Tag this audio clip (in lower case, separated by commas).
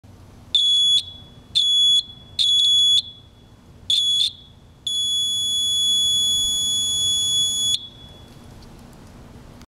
buzzer